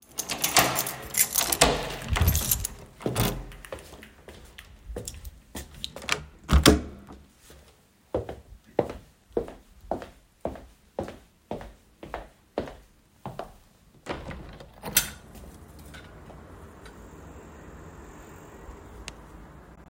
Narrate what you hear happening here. I unlocked the door, opened it, and closed it. I walked across the hallway and opened the window.